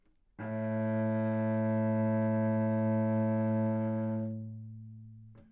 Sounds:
Musical instrument, Music, Bowed string instrument

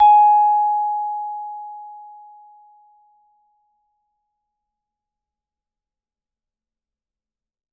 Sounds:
Mallet percussion, Percussion, Musical instrument, Music

